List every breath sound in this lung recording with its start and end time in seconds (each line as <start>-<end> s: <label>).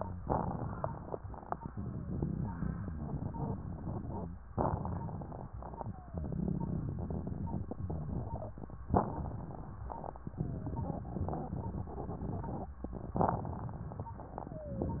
0.18-1.16 s: inhalation
0.18-1.16 s: crackles
1.62-2.18 s: wheeze
1.62-4.26 s: exhalation
1.62-4.26 s: crackles
4.52-5.50 s: inhalation
4.52-5.50 s: crackles
5.77-6.33 s: wheeze
6.01-8.57 s: exhalation
6.17-8.57 s: crackles
8.89-10.11 s: inhalation
8.89-10.11 s: crackles
10.27-10.83 s: wheeze
10.31-12.73 s: exhalation
10.33-12.67 s: crackles
13.08-14.08 s: inhalation
13.08-14.08 s: crackles
14.48-15.00 s: wheeze